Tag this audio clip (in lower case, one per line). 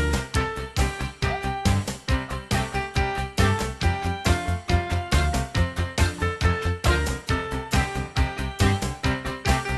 music